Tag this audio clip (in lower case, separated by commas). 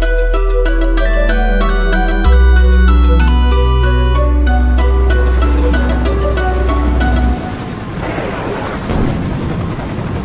music